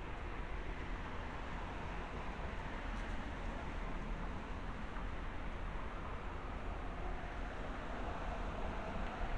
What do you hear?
background noise